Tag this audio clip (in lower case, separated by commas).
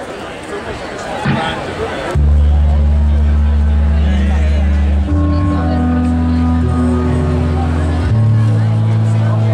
music, hubbub, crowd, speech